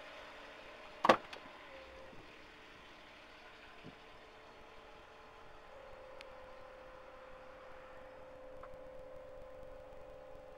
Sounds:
vehicle

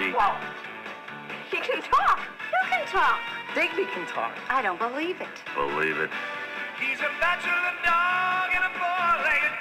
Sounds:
music
speech

